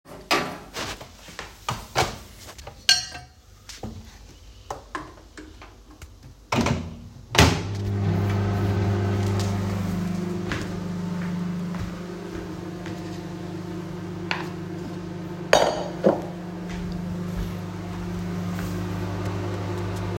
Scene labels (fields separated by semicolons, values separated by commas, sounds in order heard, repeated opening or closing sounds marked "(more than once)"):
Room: kitchen; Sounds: cutlery and dishes, microwave, footsteps